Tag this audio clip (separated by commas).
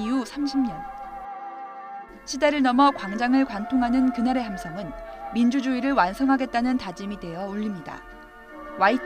people battle cry